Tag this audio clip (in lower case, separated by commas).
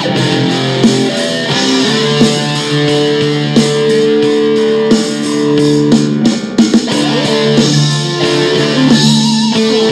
acoustic guitar, guitar, plucked string instrument, musical instrument, music